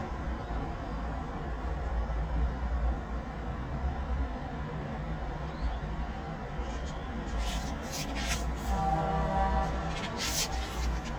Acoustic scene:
residential area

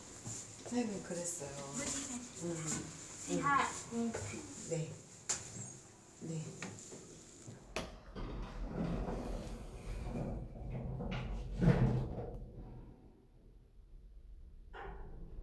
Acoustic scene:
elevator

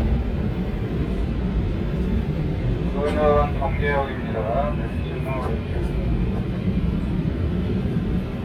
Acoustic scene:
subway train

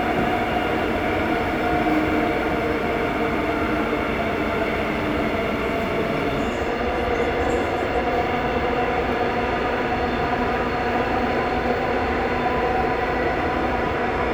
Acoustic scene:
subway train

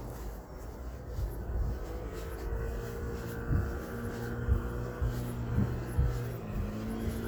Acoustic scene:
residential area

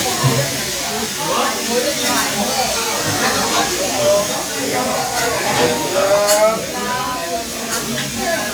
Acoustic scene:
restaurant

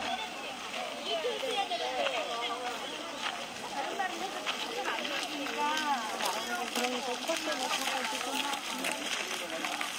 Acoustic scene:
park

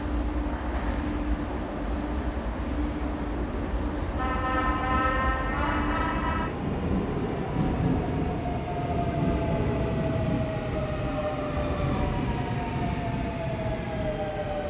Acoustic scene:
subway station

